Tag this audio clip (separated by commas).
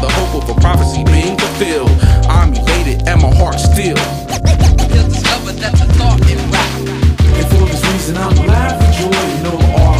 Music, Rapping